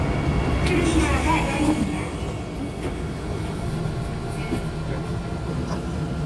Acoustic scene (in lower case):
subway train